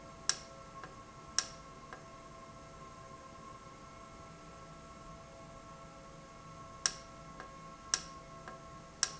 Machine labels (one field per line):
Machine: valve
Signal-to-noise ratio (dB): 6 dB